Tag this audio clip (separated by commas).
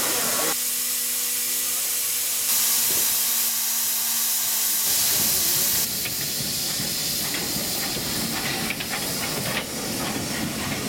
Vehicle, Rail transport, Train, Steam